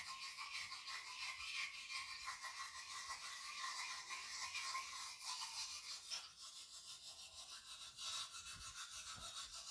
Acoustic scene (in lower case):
restroom